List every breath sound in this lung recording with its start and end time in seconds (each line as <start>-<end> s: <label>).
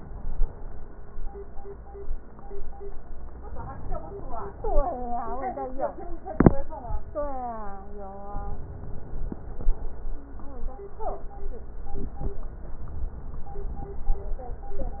8.41-9.91 s: inhalation